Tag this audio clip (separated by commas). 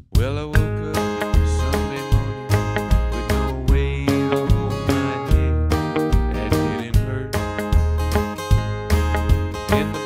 Music, Musical instrument, Strum, Plucked string instrument, Guitar